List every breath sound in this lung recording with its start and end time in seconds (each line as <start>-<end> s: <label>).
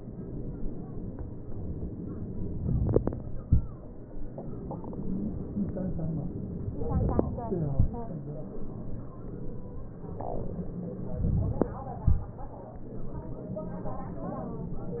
11.20-12.07 s: inhalation